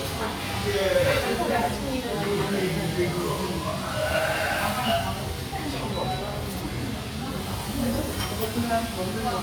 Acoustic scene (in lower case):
restaurant